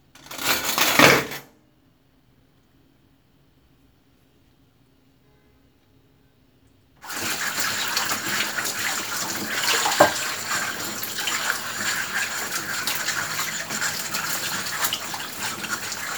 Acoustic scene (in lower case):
kitchen